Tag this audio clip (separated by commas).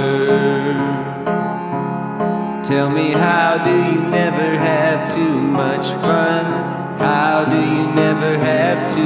Music, Musical instrument